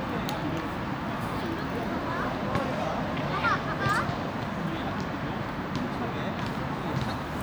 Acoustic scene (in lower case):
residential area